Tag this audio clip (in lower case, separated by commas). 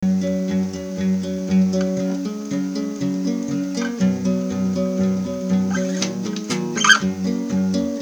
guitar, music, plucked string instrument, musical instrument, acoustic guitar